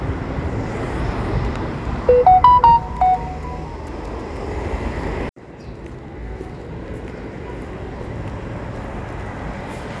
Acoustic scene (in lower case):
residential area